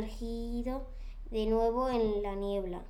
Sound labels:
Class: speech